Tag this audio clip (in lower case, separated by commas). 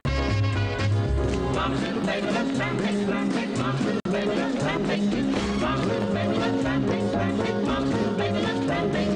music, rock and roll